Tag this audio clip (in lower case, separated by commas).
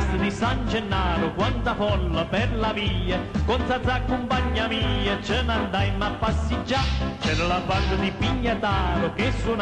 music